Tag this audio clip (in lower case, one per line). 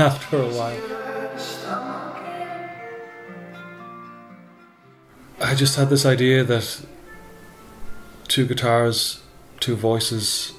speech
music